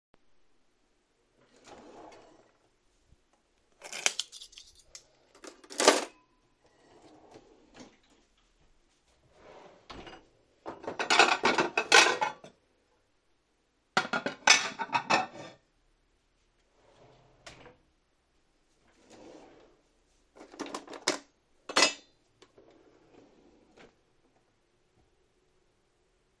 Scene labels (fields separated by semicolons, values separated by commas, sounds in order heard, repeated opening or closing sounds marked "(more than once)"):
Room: kitchen; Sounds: wardrobe or drawer (more than once), cutlery and dishes